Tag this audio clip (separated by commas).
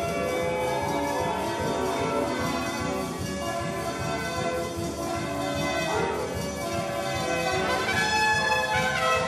Classical music, Music, Orchestra, Trumpet